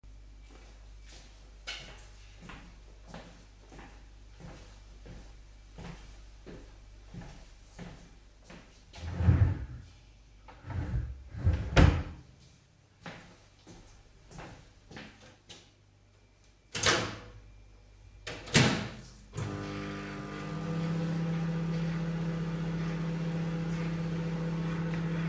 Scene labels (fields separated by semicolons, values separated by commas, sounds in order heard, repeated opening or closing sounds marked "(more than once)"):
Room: kitchen; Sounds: footsteps, wardrobe or drawer (more than once), microwave